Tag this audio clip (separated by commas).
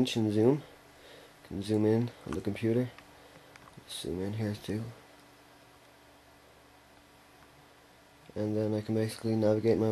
Speech